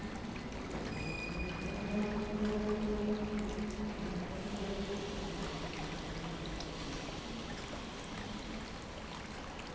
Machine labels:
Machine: pump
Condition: normal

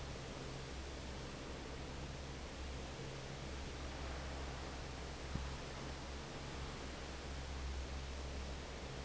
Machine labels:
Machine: fan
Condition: normal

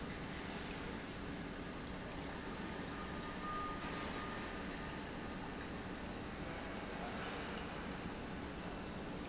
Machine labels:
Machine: pump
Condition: normal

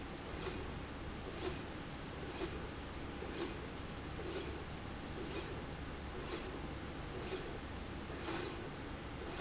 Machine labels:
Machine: slide rail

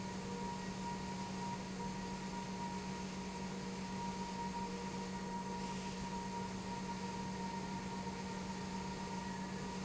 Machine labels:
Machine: pump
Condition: normal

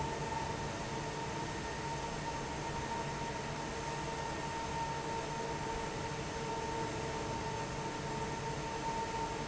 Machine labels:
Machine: fan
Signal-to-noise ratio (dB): -6 dB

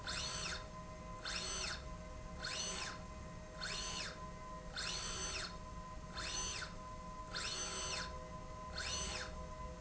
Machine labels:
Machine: slide rail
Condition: normal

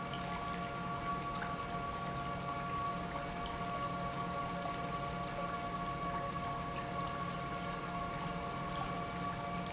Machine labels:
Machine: pump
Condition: normal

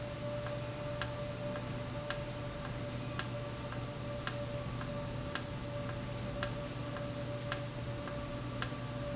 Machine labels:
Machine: valve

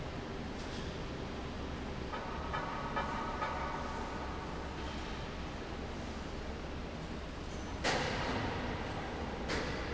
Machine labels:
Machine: fan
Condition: abnormal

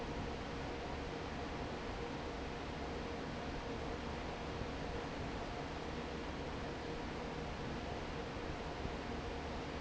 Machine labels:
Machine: fan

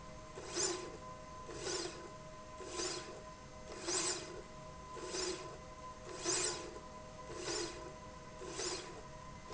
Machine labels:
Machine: slide rail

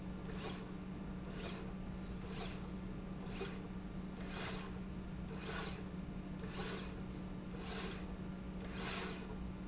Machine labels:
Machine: slide rail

